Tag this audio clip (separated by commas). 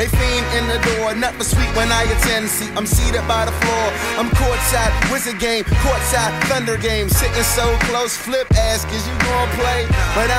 Music